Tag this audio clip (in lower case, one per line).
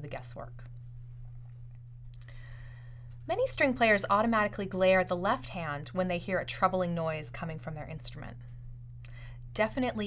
speech